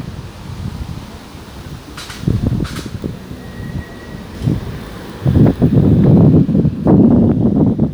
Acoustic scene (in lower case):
residential area